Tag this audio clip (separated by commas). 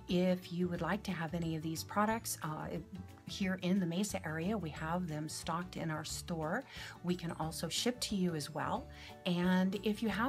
Speech, Music